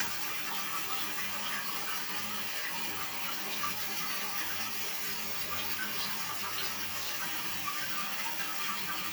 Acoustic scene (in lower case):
restroom